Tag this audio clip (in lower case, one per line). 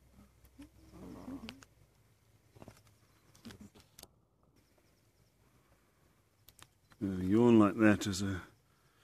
speech